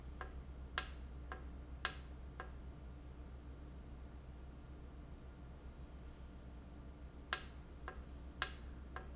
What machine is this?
valve